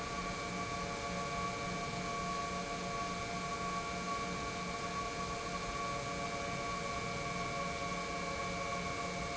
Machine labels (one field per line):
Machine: pump